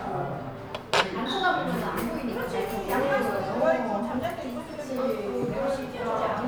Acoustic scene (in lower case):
crowded indoor space